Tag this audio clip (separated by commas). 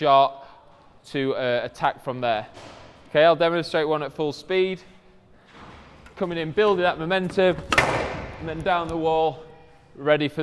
playing squash